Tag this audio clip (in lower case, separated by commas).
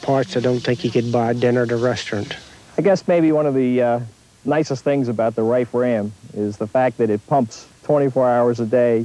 speech